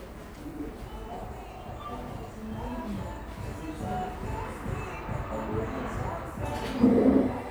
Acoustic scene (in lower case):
cafe